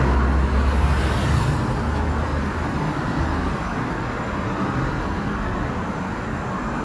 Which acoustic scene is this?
street